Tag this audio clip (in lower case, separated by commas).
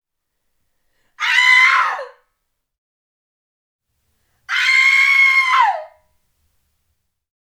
human voice, screaming